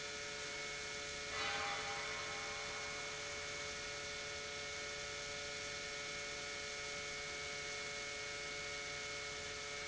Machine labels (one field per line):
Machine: pump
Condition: normal